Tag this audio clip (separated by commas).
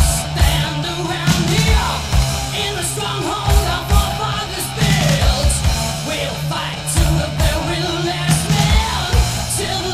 Music